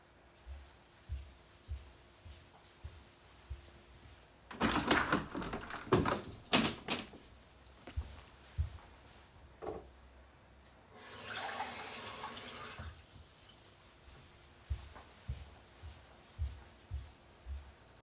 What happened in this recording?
I walked into the kitchen, opened a window and walked towards a sink. Then I picked up a glass, filled it with water and left the kitchen.